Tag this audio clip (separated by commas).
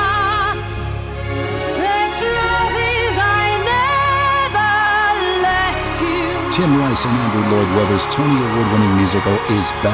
Music, Speech